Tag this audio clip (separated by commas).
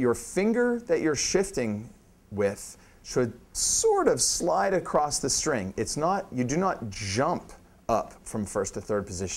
Speech